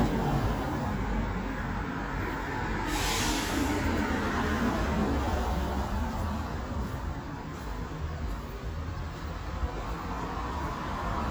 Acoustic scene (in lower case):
street